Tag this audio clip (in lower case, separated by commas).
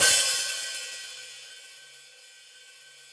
musical instrument, hi-hat, music, percussion, cymbal